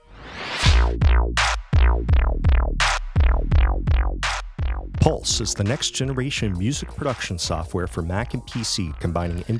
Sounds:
Music, Speech

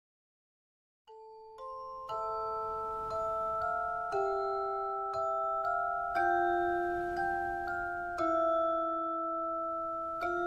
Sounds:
Glockenspiel, Mallet percussion, xylophone

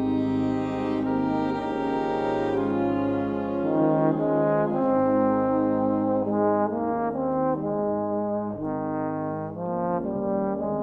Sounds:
playing trombone, Music, Trombone

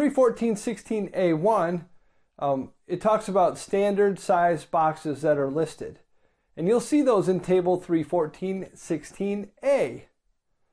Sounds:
Speech

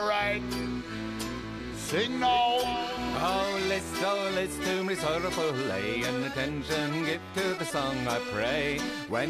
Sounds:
Speech, Music

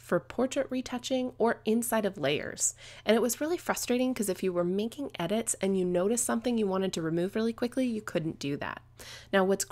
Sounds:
Speech

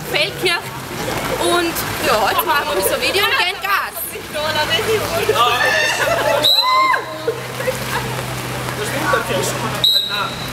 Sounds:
Speech

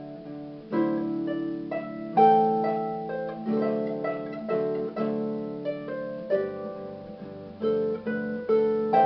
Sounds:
Musical instrument, Music

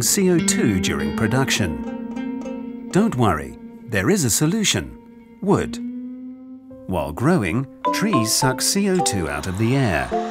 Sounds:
Music, Speech

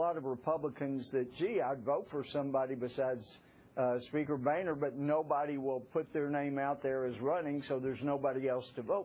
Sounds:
Speech

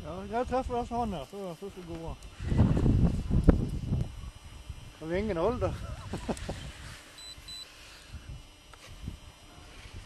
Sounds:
Speech, outside, rural or natural

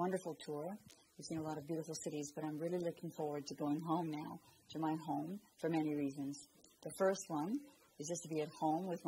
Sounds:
Speech

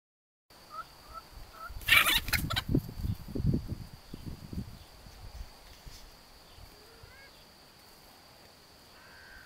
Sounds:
Bird, Chicken

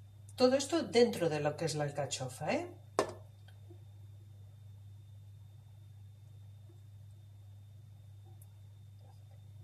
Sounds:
Speech

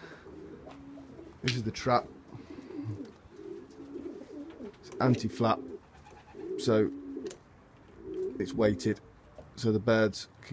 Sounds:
Pigeon, Coo, bird song, Bird

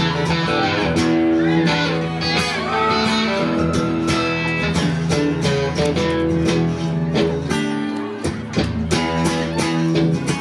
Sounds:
Music, Guitar

